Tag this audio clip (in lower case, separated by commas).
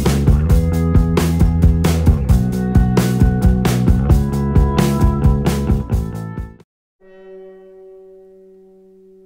outside, urban or man-made, music, theremin